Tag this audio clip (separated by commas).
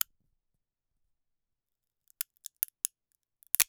Crack